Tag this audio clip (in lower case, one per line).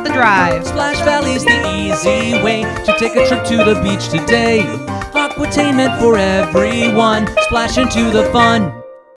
speech
music